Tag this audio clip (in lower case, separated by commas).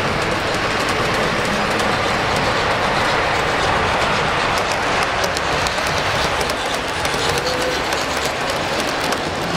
rail transport, train, clickety-clack, railroad car